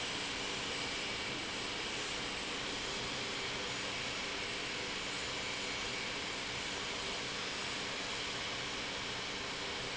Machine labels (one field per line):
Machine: pump